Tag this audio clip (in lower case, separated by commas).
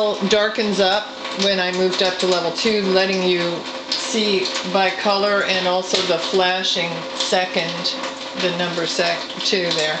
speech